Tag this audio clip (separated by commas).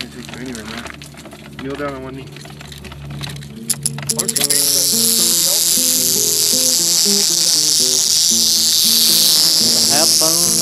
Speech, Music, outside, rural or natural